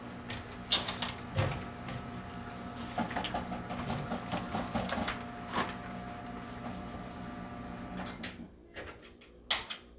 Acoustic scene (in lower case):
kitchen